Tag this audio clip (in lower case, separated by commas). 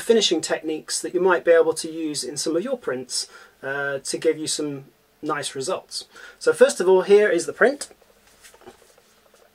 speech